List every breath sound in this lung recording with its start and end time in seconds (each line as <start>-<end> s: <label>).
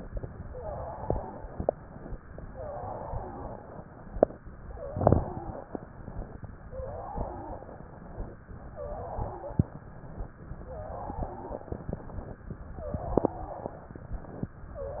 0.46-1.52 s: exhalation
0.46-1.52 s: wheeze
2.54-3.76 s: exhalation
2.54-3.76 s: wheeze
6.66-7.88 s: exhalation
6.66-7.88 s: wheeze
8.75-9.83 s: exhalation
8.75-9.83 s: wheeze
10.64-11.84 s: exhalation
10.64-11.84 s: wheeze
12.90-13.93 s: exhalation
12.90-13.93 s: wheeze